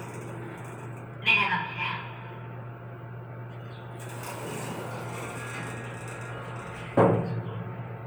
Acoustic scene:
elevator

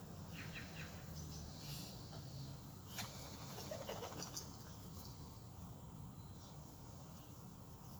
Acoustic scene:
park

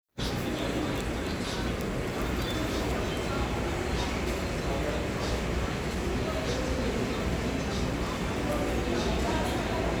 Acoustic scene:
crowded indoor space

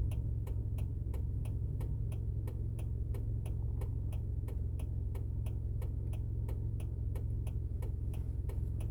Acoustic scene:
car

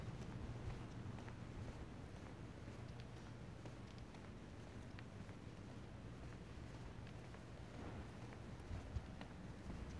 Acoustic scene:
residential area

